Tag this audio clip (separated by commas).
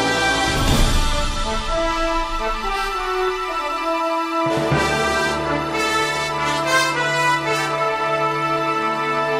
Theme music, Music